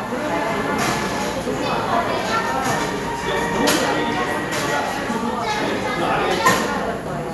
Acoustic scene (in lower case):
cafe